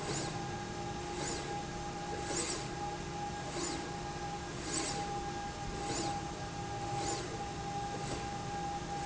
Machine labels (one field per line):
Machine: slide rail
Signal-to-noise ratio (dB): -6 dB